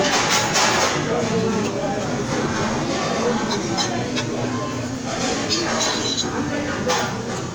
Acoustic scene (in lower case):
crowded indoor space